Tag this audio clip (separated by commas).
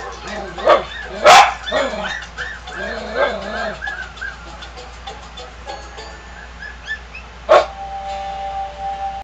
pets, Music, Dog, Animal